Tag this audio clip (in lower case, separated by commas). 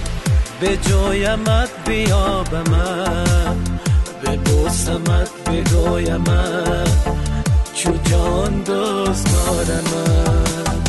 soundtrack music, music